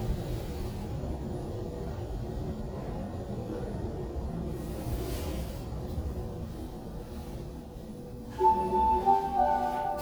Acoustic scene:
elevator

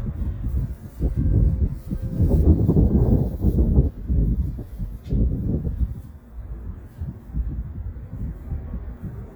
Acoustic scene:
residential area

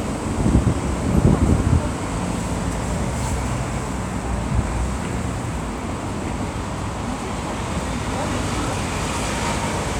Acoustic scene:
street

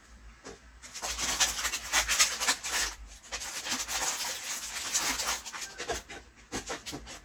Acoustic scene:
kitchen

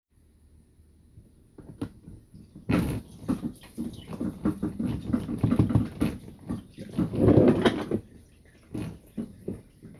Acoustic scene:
kitchen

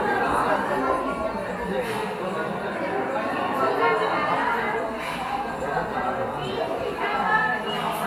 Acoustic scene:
cafe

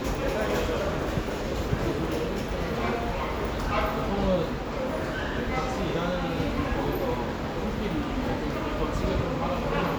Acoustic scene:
subway station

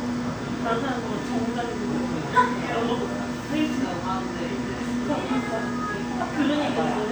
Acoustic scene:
cafe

